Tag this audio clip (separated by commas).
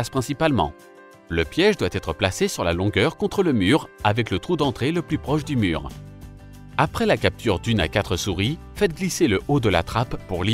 Speech, Music